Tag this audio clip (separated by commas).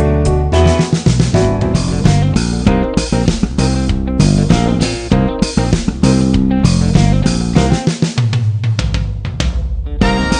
playing bass drum